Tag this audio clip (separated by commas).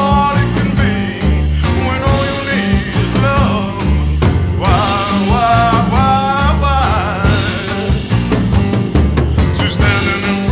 Psychedelic rock, Pop music, Music